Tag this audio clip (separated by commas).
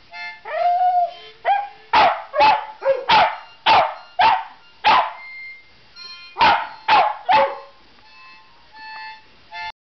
dog bow-wow, Music, Dog, Animal, Bow-wow, Domestic animals